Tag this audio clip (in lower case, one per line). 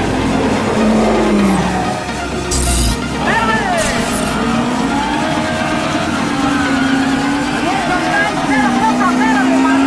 speech
music